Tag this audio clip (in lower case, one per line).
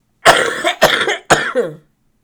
respiratory sounds
cough